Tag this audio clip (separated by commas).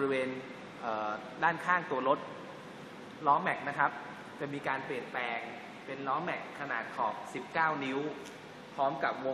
Speech